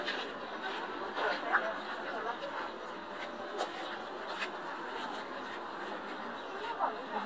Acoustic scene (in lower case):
park